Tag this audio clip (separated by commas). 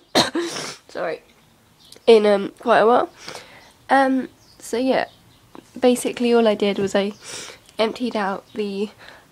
Speech